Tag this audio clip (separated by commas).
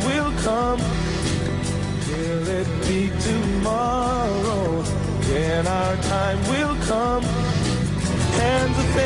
Music